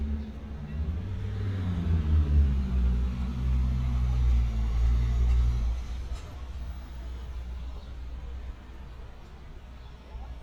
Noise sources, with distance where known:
medium-sounding engine, near

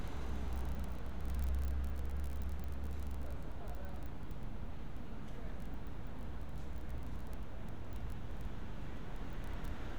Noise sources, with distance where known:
engine of unclear size
person or small group talking

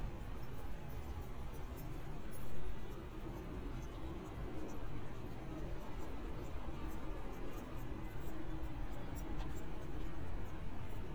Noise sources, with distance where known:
unidentified human voice, far

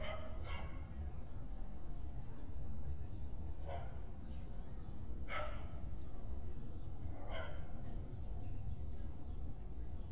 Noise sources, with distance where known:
dog barking or whining, far

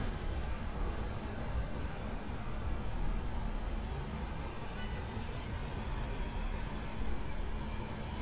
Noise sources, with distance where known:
car horn, far

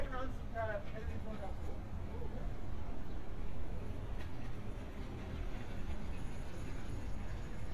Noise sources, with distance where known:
person or small group talking, near

